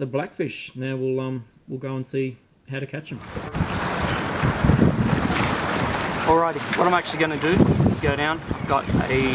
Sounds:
speech

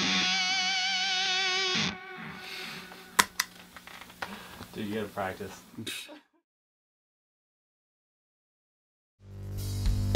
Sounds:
speech
music

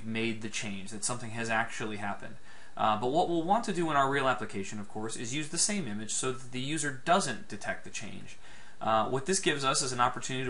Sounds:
speech

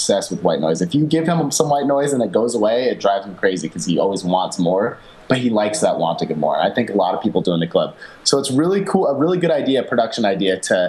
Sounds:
speech

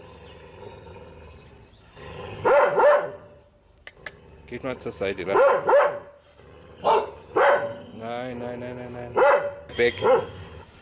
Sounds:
dog
speech
animal

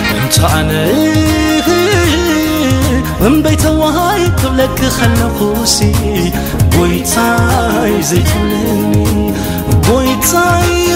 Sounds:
happy music
music

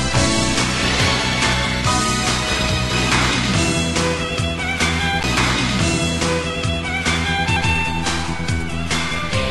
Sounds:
music

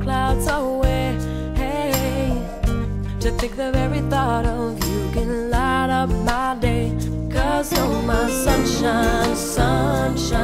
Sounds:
tender music
music

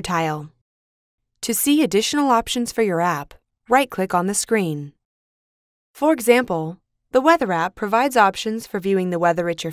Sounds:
speech

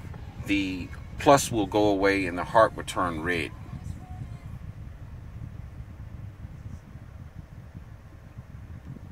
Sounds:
vehicle
speech

